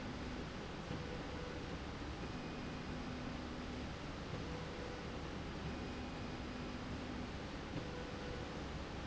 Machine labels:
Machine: slide rail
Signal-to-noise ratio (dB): 0 dB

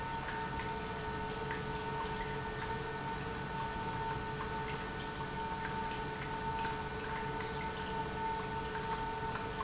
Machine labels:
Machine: pump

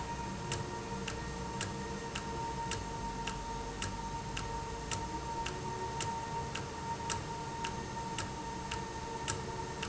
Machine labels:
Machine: valve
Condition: normal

